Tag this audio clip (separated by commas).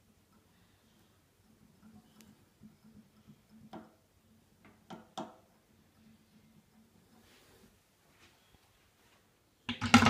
Silence, inside a small room